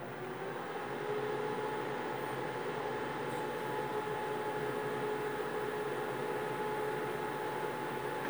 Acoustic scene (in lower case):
kitchen